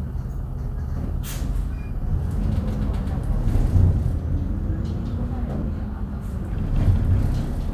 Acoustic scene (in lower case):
bus